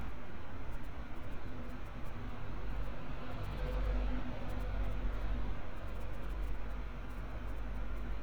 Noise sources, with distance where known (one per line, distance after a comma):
engine of unclear size